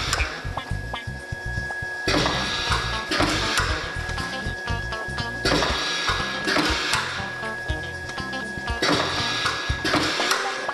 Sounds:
printer
music

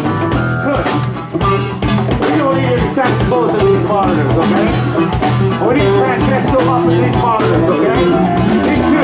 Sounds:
music
speech

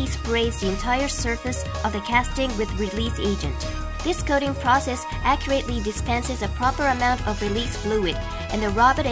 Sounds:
music
speech

